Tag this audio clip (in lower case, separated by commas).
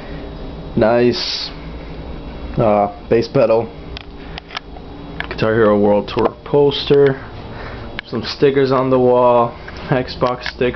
speech